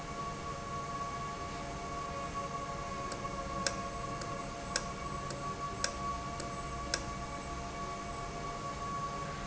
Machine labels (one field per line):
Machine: valve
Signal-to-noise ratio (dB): -6 dB